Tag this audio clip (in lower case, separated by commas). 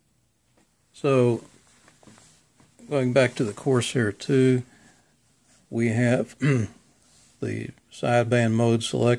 speech